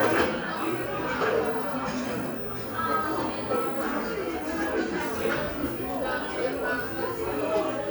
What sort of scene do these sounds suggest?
crowded indoor space